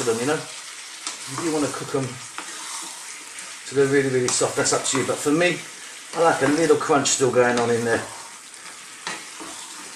A man speaks as food sizzles in a pan